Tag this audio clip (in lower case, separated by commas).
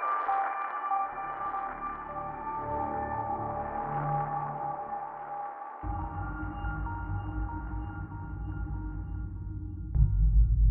music